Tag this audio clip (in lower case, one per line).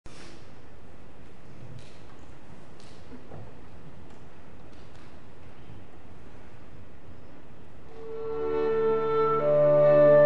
playing clarinet